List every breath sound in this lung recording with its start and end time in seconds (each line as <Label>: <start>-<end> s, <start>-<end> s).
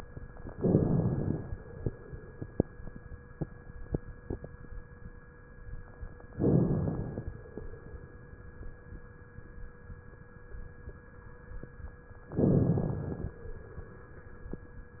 Inhalation: 0.49-1.50 s, 6.32-7.29 s, 12.35-13.32 s